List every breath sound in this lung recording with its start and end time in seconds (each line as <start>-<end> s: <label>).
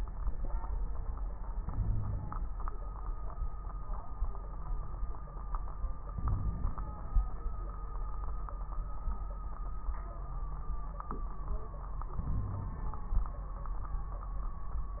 1.57-2.46 s: inhalation
1.72-2.46 s: wheeze
6.13-7.24 s: inhalation
6.13-7.24 s: crackles
12.16-13.04 s: inhalation
12.32-12.77 s: wheeze